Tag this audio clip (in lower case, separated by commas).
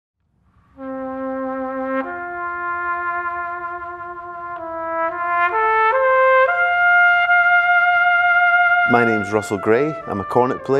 playing cornet